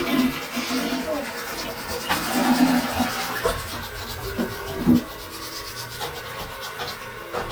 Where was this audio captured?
in a restroom